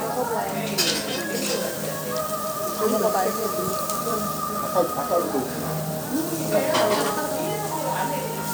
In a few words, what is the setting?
restaurant